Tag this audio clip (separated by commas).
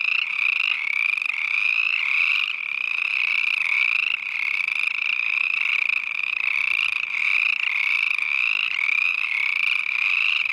frog croaking